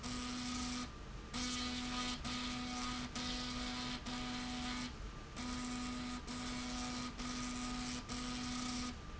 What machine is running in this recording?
slide rail